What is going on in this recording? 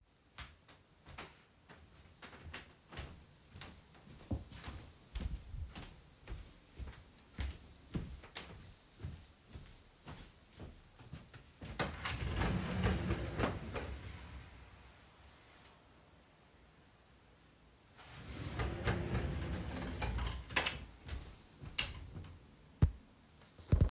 I walked across the room to the drawer and opened it. I searched through the contents briefly before closing it again.